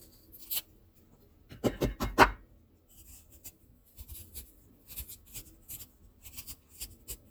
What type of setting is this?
kitchen